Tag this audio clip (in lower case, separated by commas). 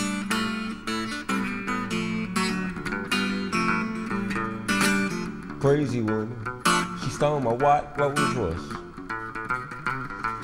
acoustic guitar, guitar, musical instrument, music, electric guitar